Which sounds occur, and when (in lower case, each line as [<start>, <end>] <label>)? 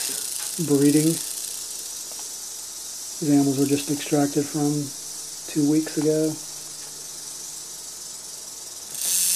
[0.00, 9.35] mechanisms
[0.00, 9.35] snake
[0.04, 0.16] generic impact sounds
[0.35, 0.51] generic impact sounds
[0.53, 1.18] male speech
[1.98, 2.21] generic impact sounds
[3.18, 4.85] male speech
[3.92, 4.02] generic impact sounds
[5.52, 6.37] male speech
[5.84, 6.04] generic impact sounds
[6.26, 6.37] generic impact sounds
[6.60, 6.89] generic impact sounds
[8.88, 9.35] generic impact sounds